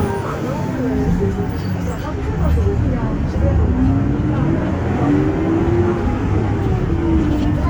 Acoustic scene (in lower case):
bus